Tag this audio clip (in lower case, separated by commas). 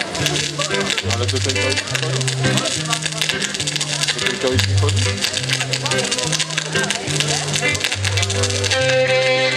music, speech, folk music